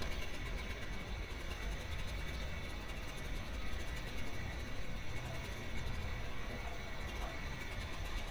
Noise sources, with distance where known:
small-sounding engine, near

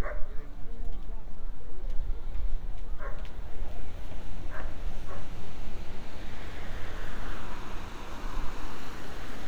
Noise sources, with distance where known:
dog barking or whining, far

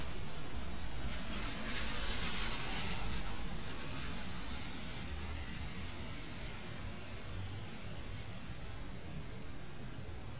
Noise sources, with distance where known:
background noise

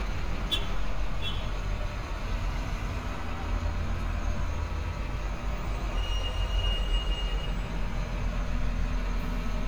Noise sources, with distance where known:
large-sounding engine, near; car horn, near

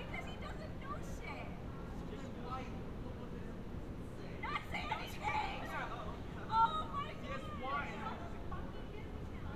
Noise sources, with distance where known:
person or small group talking, near; person or small group shouting, near

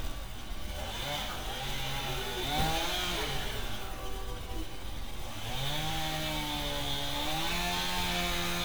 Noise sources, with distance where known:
chainsaw, near

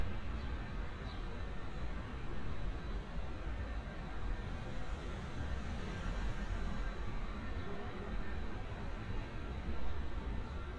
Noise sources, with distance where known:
background noise

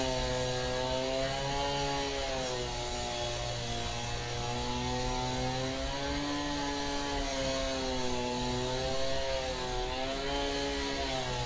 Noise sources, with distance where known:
unidentified powered saw, near

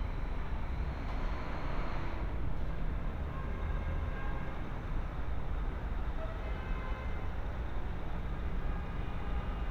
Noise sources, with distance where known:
large-sounding engine, far; car horn, far

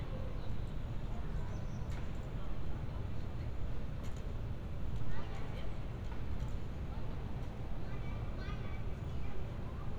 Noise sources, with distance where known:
person or small group talking

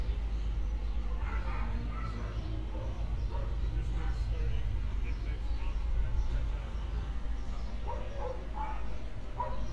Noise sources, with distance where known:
person or small group talking, near; dog barking or whining, near

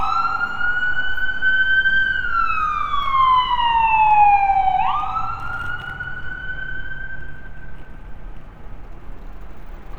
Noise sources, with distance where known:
siren, near

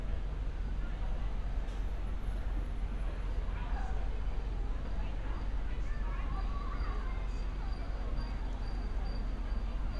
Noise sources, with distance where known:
unidentified human voice, far

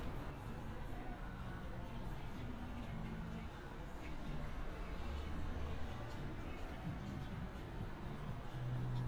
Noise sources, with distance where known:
music from an unclear source, far

